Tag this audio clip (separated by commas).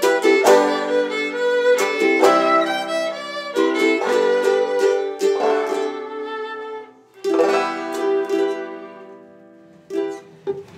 Guitar, Plucked string instrument, Music, Bowed string instrument